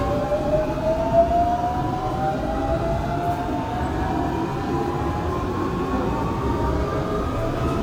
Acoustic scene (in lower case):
subway train